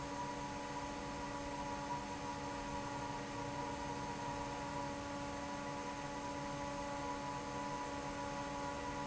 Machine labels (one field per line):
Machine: fan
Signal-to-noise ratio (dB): 0 dB